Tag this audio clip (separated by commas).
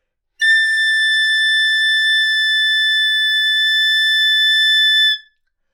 Wind instrument, Music, Musical instrument